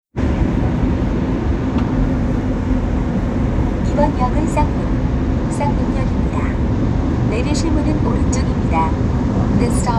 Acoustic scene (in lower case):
subway train